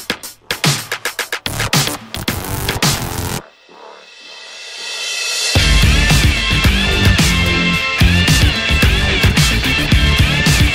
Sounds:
music, rhythm and blues, blues

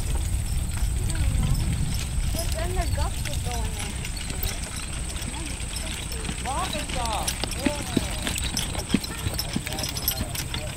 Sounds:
clip-clop, speech, horse, animal

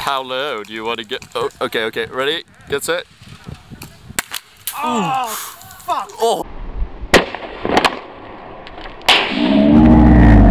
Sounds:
speech, outside, rural or natural

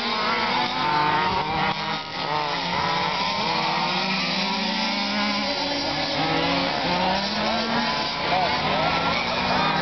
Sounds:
car, car passing by

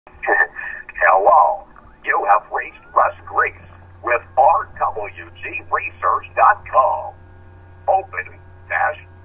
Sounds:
radio, speech

